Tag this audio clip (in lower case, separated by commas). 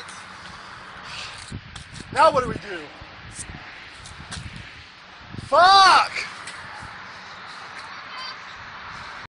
speech